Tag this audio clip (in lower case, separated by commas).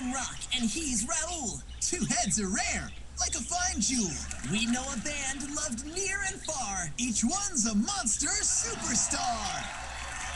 speech